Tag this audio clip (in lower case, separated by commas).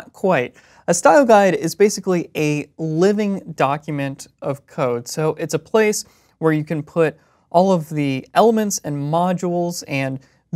speech